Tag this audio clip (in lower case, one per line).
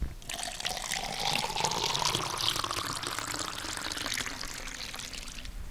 fill (with liquid)
liquid